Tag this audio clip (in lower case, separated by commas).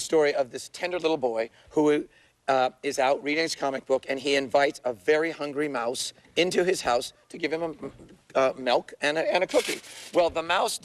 speech